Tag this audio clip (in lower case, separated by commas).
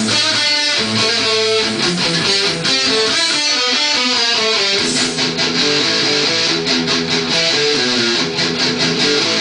guitar, music, strum, plucked string instrument, musical instrument, bass guitar